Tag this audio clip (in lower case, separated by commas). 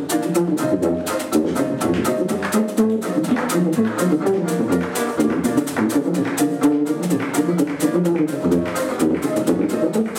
music